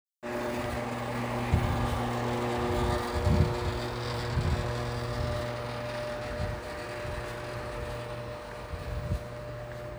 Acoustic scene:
residential area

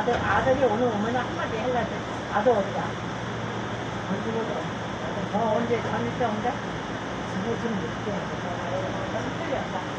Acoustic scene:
subway train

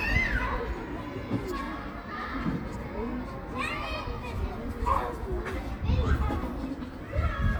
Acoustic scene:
park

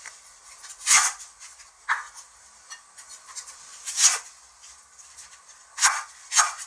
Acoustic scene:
kitchen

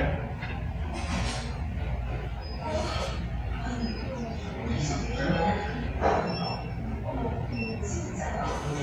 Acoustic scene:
restaurant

